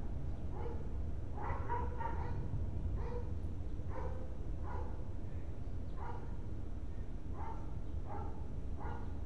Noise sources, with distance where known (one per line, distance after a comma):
dog barking or whining, far